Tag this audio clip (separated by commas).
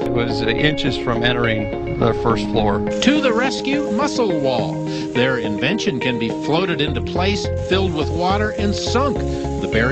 Speech, Music